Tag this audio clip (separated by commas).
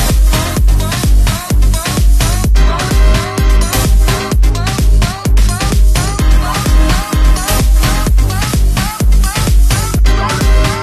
Music, House music